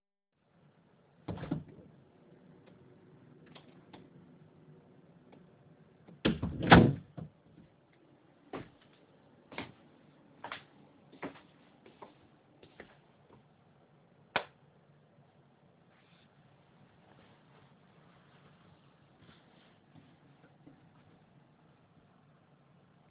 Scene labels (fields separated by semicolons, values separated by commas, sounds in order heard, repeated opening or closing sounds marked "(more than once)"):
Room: hallway; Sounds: door (more than once), footsteps, light switch